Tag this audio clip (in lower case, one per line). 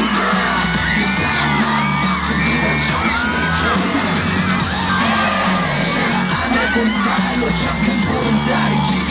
music
funk